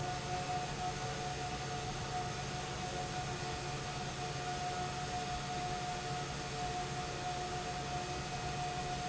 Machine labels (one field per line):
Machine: pump